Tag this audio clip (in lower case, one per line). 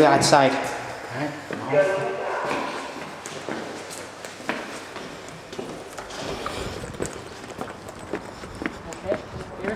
speech